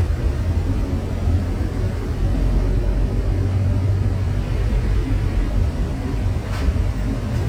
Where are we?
on a bus